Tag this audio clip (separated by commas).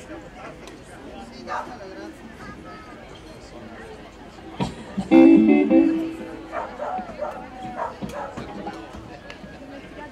Speech, Music